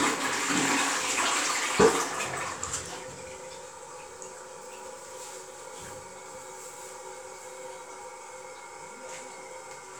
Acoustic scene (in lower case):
restroom